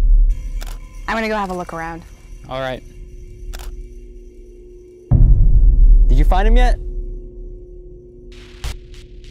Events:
[0.00, 9.30] music
[0.52, 0.75] camera
[1.05, 1.94] woman speaking
[1.06, 6.77] conversation
[1.31, 1.56] camera
[2.46, 2.79] male speech
[3.48, 3.71] camera
[6.05, 6.73] male speech

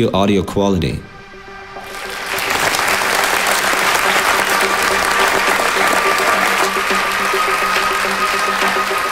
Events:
[0.00, 0.97] man speaking
[0.00, 1.86] mechanisms
[0.00, 9.11] music
[1.75, 9.11] applause

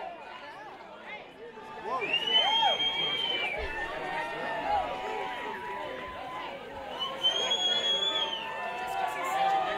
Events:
[0.00, 0.77] man speaking
[0.00, 9.75] speech noise
[1.03, 1.19] human voice
[1.35, 2.54] man speaking
[1.81, 2.04] human voice
[1.98, 3.56] whistling
[2.33, 2.75] whoop
[2.82, 4.02] man speaking
[3.43, 4.86] whoop
[4.60, 4.80] human voice
[5.03, 6.50] speech
[5.23, 6.11] whoop
[6.72, 7.93] speech
[6.94, 8.51] whistling
[7.37, 7.53] man speaking
[8.58, 9.69] female speech

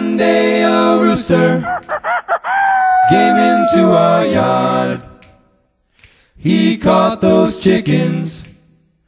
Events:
[1.62, 4.80] chicken
[5.87, 6.36] breathing
[8.39, 8.51] tick

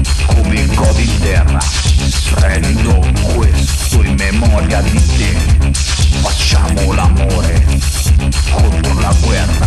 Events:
[0.01, 9.65] music
[0.41, 1.80] male singing
[2.33, 5.54] male singing
[6.35, 7.87] male singing
[8.48, 9.65] male singing

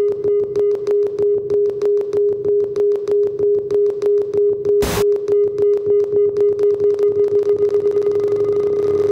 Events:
[0.00, 9.11] mechanisms
[4.79, 5.00] noise

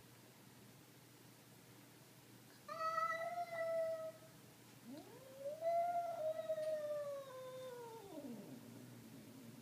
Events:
[0.00, 9.61] mechanisms
[2.50, 4.37] cat
[4.61, 9.61] cat
[4.62, 4.74] tick
[4.92, 5.06] tick
[6.59, 6.73] tick

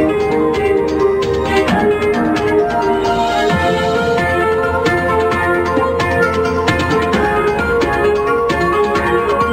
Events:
[0.00, 9.52] music

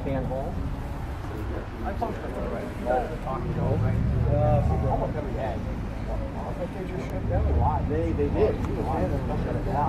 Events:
[0.00, 0.52] male speech
[0.00, 9.85] mechanisms
[1.80, 3.85] male speech
[4.23, 5.59] male speech
[6.07, 9.85] male speech

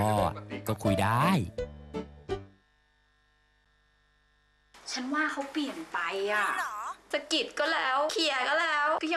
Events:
[0.00, 1.49] male speech
[0.00, 2.67] music
[1.45, 4.71] mechanisms
[4.74, 9.15] background noise
[4.84, 5.79] female speech
[4.86, 9.15] conversation
[5.36, 5.49] generic impact sounds
[5.91, 6.98] female speech
[7.11, 9.15] female speech

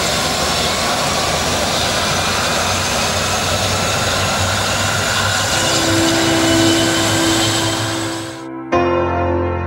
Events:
[0.00, 8.48] aircraft
[5.46, 9.65] music

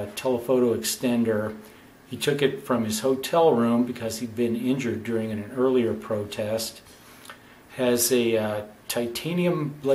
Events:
[0.00, 1.54] male speech
[0.00, 9.94] mechanisms
[1.41, 1.93] surface contact
[2.05, 6.73] male speech
[7.21, 7.35] generic impact sounds
[7.67, 8.74] male speech
[8.86, 9.94] male speech

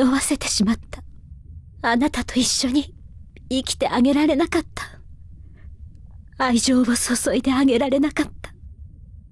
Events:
[0.00, 0.97] woman speaking
[0.00, 9.31] background noise
[0.00, 9.31] conversation
[0.77, 0.83] tick
[1.10, 1.17] tick
[1.77, 2.87] woman speaking
[3.32, 3.38] tick
[3.47, 4.62] woman speaking
[4.75, 4.97] woman speaking
[5.34, 5.64] breathing
[5.91, 5.94] tick
[6.07, 6.12] tick
[6.25, 6.31] tick
[6.33, 8.51] woman speaking
[8.43, 8.49] tick

